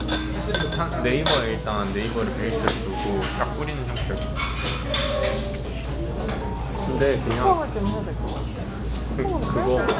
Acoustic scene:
restaurant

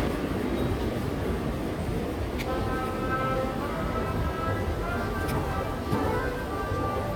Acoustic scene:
subway station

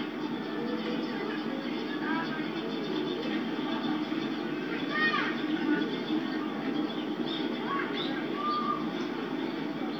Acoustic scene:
park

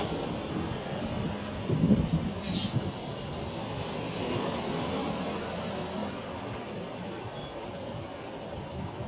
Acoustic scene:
street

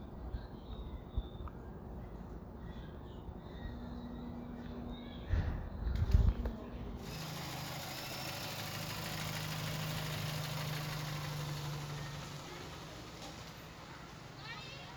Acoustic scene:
residential area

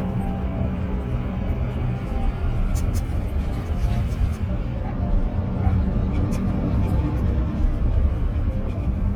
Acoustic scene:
bus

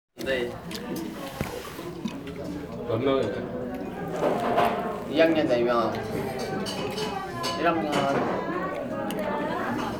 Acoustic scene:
crowded indoor space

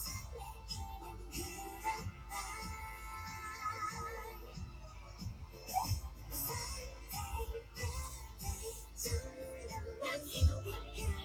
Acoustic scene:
car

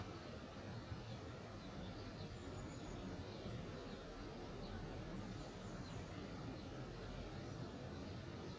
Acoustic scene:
park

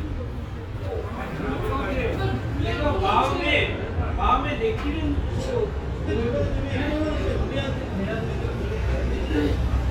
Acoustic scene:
restaurant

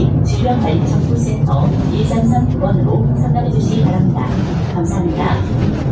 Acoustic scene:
bus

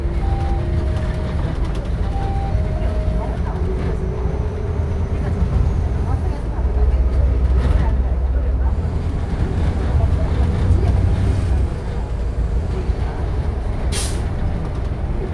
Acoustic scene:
bus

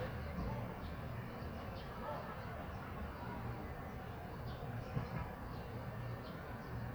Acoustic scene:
residential area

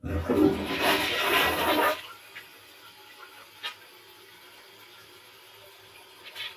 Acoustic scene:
restroom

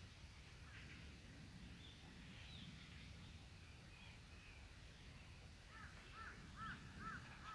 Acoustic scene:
park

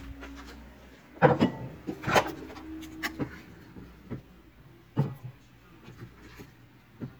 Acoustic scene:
kitchen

